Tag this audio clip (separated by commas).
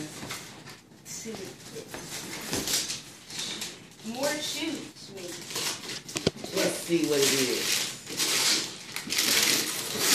Speech